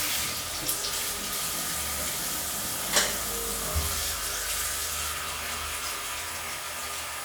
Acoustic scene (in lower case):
restroom